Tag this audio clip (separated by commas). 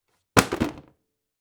Thump